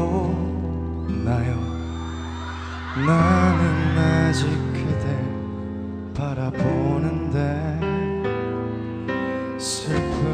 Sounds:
Music, Male singing

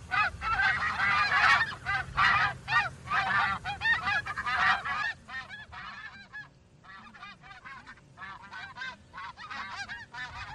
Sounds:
goose honking

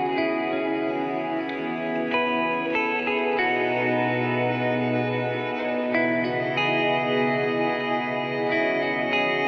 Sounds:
Music

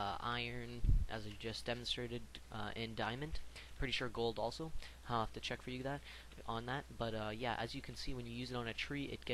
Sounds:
Speech

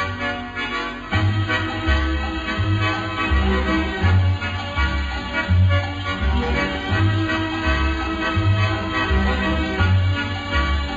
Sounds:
Music

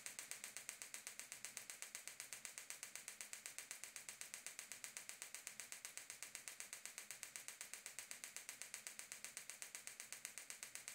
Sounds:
inside a small room

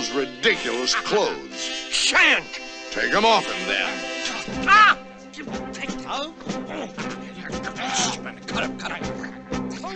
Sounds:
Music, Speech

